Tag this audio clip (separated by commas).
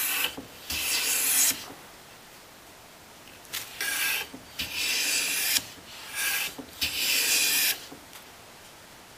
Tools